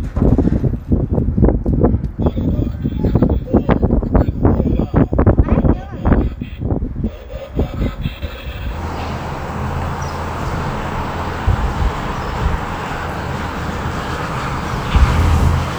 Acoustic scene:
residential area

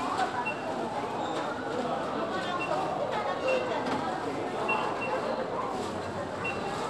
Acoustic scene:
crowded indoor space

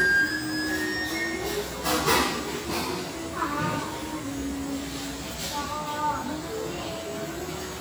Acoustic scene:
restaurant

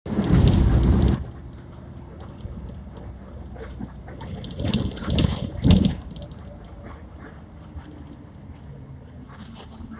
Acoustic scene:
bus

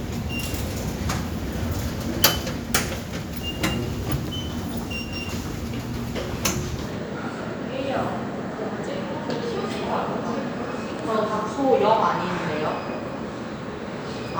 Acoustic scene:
subway station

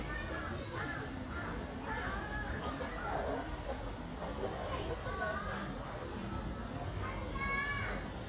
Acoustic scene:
park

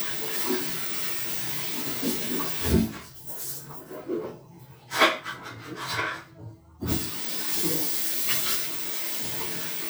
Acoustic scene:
restroom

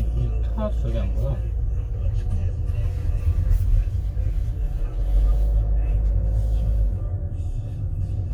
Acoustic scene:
car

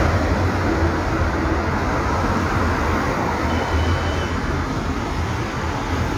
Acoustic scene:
street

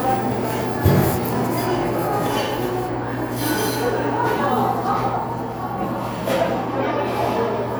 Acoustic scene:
cafe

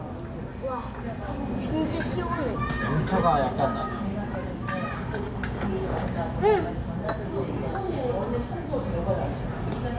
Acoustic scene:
restaurant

